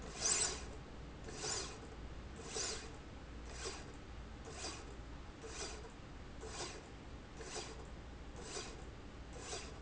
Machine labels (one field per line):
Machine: slide rail